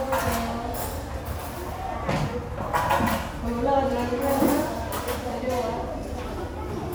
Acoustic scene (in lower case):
restaurant